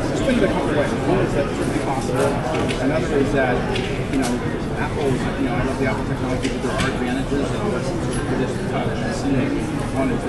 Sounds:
speech

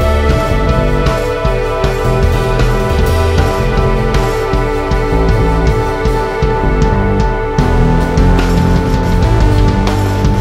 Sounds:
playing bass drum

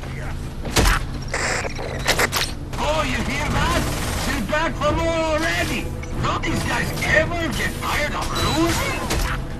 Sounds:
speech

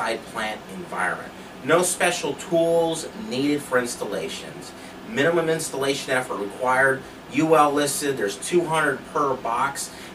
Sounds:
speech

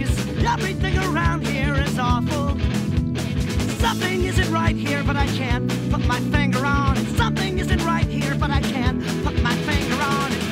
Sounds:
music

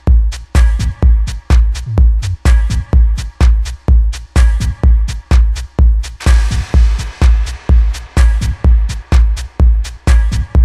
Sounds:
music

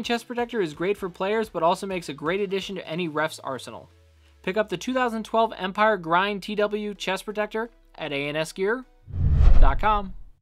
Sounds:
speech

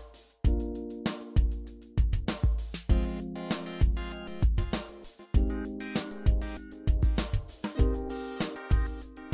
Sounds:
music

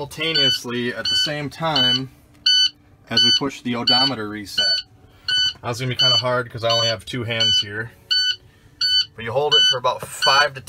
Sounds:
reversing beeps

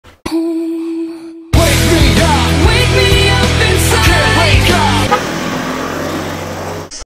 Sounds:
music, skateboard

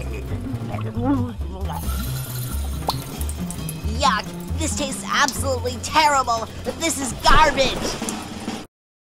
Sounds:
speech, music

